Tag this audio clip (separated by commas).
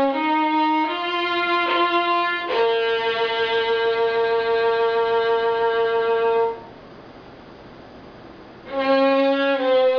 Music, playing violin, Violin, Musical instrument